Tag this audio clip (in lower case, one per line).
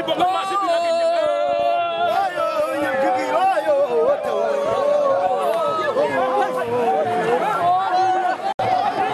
fireworks